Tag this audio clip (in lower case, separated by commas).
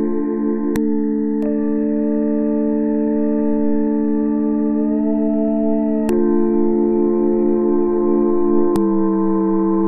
ambient music, music, electronic music